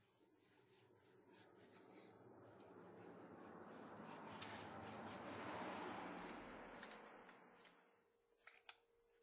Rubbing noise and the sound of a passing car